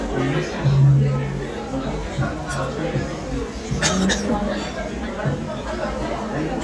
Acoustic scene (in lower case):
crowded indoor space